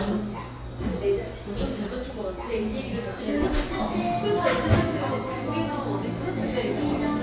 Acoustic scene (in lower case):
cafe